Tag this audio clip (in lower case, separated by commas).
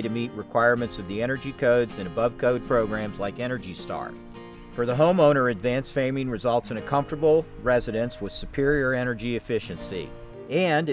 music, speech